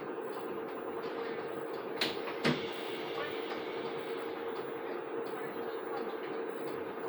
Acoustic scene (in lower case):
bus